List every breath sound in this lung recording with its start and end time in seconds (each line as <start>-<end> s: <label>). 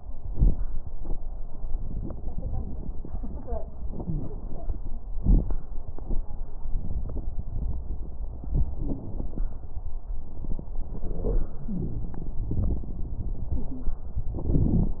4.00-4.25 s: wheeze
11.70-12.10 s: wheeze